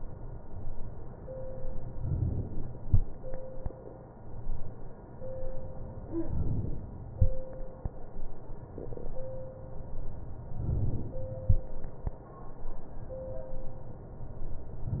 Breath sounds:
Inhalation: 6.18-6.88 s, 10.52-11.22 s

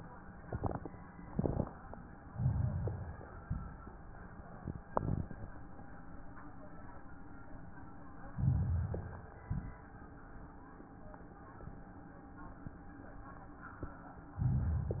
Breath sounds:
Inhalation: 2.35-3.40 s, 8.33-9.37 s, 14.34-15.00 s

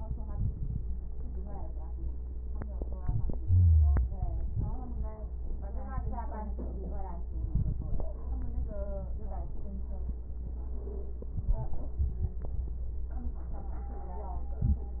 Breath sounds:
Wheeze: 3.40-4.11 s

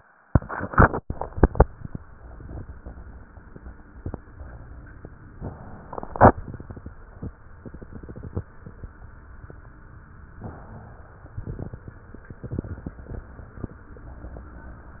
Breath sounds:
Inhalation: 5.34-6.91 s, 10.36-11.38 s

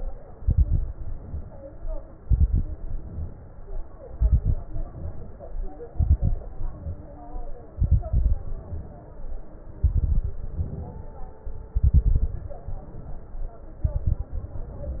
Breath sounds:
Inhalation: 0.93-2.01 s, 2.81-3.89 s, 4.71-5.79 s, 6.59-7.67 s, 8.44-9.52 s, 10.47-11.46 s, 12.69-13.68 s, 14.38-15.00 s
Exhalation: 0.34-0.91 s, 2.18-2.75 s, 4.08-4.65 s, 5.91-6.40 s, 7.77-8.40 s, 9.82-10.39 s, 11.74-12.45 s, 13.85-14.38 s
Crackles: 0.34-0.91 s, 2.18-2.75 s, 4.08-4.65 s, 5.91-6.40 s, 7.77-8.40 s, 9.82-10.39 s, 11.74-12.45 s, 13.85-14.38 s

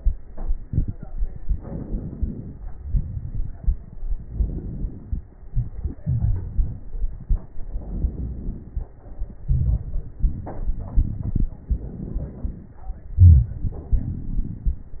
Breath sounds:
Inhalation: 1.51-2.66 s, 4.23-5.24 s, 7.76-8.92 s, 11.62-12.82 s
Exhalation: 2.79-4.03 s, 5.42-7.47 s, 9.40-11.49 s, 13.17-15.00 s
Crackles: 2.79-4.03 s, 5.42-7.47 s, 9.40-11.49 s, 13.17-15.00 s

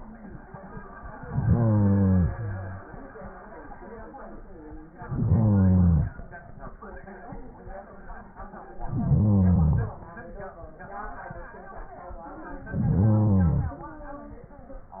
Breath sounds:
Inhalation: 1.25-2.86 s, 4.90-6.21 s, 8.76-10.06 s, 12.57-13.88 s

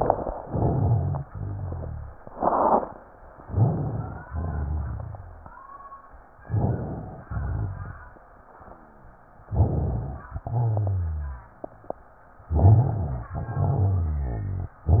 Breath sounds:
Inhalation: 0.38-1.23 s, 3.41-4.25 s, 6.41-7.22 s, 9.45-10.26 s, 12.48-13.33 s
Exhalation: 1.27-2.16 s, 4.25-5.67 s, 7.32-8.12 s, 10.38-11.57 s, 13.35-14.78 s
Rhonchi: 0.38-1.19 s, 1.27-2.16 s, 3.41-4.21 s, 4.25-5.67 s, 6.41-7.22 s, 7.32-8.12 s, 9.45-10.26 s, 10.38-11.57 s, 12.48-13.33 s, 13.35-14.78 s

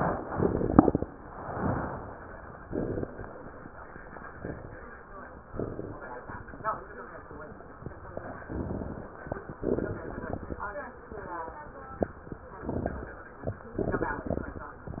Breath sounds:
Inhalation: 8.35-9.20 s, 12.68-13.21 s
Exhalation: 9.60-10.61 s, 13.83-14.72 s
Crackles: 8.35-9.20 s, 9.60-10.61 s, 12.68-13.21 s, 13.83-14.72 s

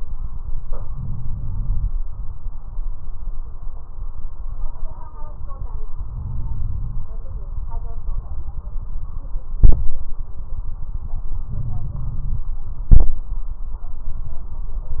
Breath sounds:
Inhalation: 0.92-1.88 s, 6.12-7.07 s, 11.50-12.46 s
Crackles: 0.92-1.88 s, 6.12-7.07 s, 11.50-12.46 s

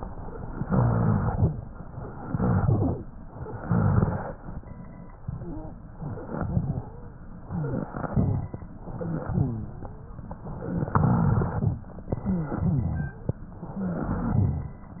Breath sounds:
Inhalation: 0.59-1.43 s, 2.12-2.67 s, 3.44-4.31 s, 5.97-6.47 s, 7.45-7.95 s, 8.85-9.35 s, 10.45-10.95 s, 12.12-12.62 s, 13.69-14.25 s
Exhalation: 2.67-3.11 s, 6.50-7.00 s, 8.04-8.54 s, 9.33-9.83 s, 10.96-11.86 s, 12.65-13.32 s, 14.22-14.78 s
Wheeze: 5.31-5.77 s, 6.73-7.23 s, 7.45-7.95 s, 9.30-10.24 s
Rhonchi: 0.57-1.46 s, 2.18-3.08 s, 3.45-4.35 s, 6.03-6.93 s, 7.50-8.54 s, 8.88-9.27 s, 10.45-10.95 s, 10.97-11.80 s, 12.26-13.30 s, 13.72-14.76 s

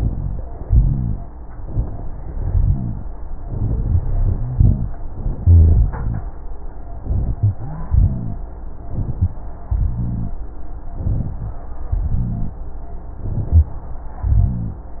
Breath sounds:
Inhalation: 0.00-0.55 s, 1.67-2.35 s, 7.06-7.84 s, 8.92-9.43 s, 10.93-11.59 s, 13.17-13.76 s
Exhalation: 0.63-1.18 s, 2.37-3.06 s, 7.89-8.48 s, 9.66-10.44 s, 11.95-12.62 s, 14.25-14.91 s
Wheeze: 7.42-7.84 s
Rhonchi: 0.00-0.55 s, 0.63-1.18 s, 2.37-3.06 s, 5.39-5.90 s, 7.89-8.48 s, 9.66-10.44 s, 11.95-12.62 s, 14.25-14.91 s
Crackles: 8.92-9.43 s, 13.17-13.76 s

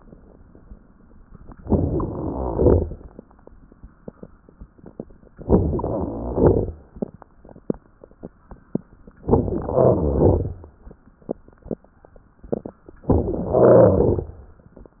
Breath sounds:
Inhalation: 1.59-2.56 s, 5.45-6.34 s, 9.26-10.06 s, 13.09-13.95 s
Exhalation: 2.56-3.13 s, 6.36-6.93 s, 10.08-10.68 s, 13.97-14.50 s
Crackles: 1.63-2.52 s, 2.56-3.13 s, 5.45-6.34 s, 6.36-6.93 s, 9.26-10.06 s, 10.08-10.68 s, 13.09-13.95 s, 13.97-14.50 s

